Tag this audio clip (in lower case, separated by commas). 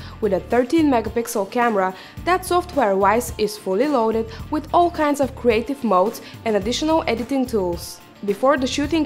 music, speech